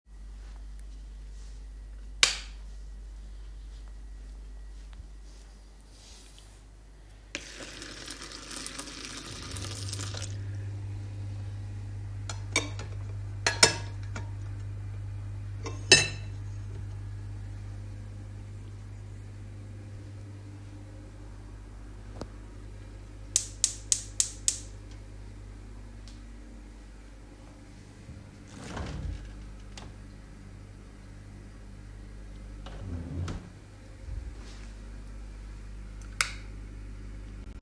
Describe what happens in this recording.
I went into the kitchen and turned on the light. I turned on the tap water, then grabbed a plate. I clicked the stove on, opened the drawer to check what was inside then closed it, then turned off the light.